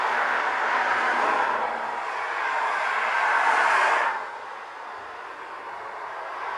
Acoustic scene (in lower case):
street